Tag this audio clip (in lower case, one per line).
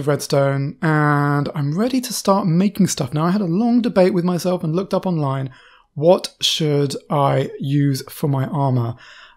monologue